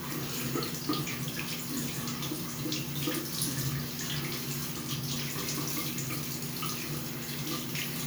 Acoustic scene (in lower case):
restroom